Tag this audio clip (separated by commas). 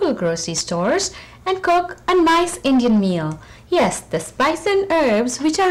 Speech